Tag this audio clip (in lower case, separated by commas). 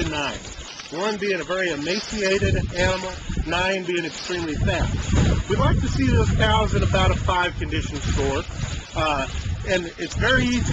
speech